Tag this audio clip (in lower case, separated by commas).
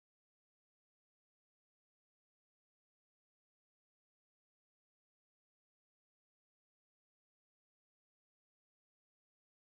silence